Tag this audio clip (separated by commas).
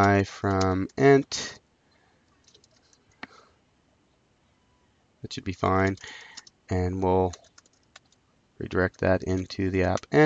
Speech